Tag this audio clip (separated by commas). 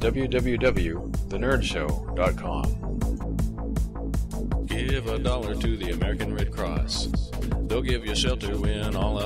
Music, Speech